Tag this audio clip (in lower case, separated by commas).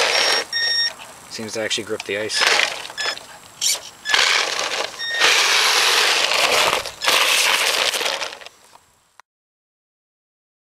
car, speech